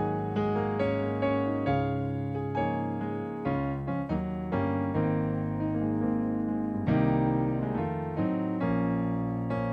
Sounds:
Music

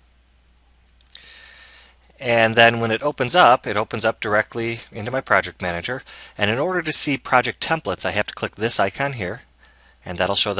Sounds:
Speech

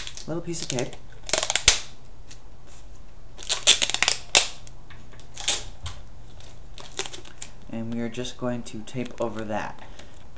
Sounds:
Speech, inside a small room

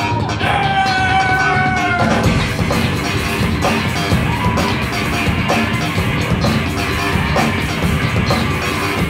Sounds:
Screaming, Music

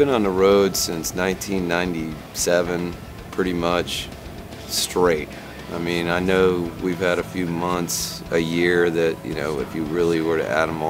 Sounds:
Speech, Music

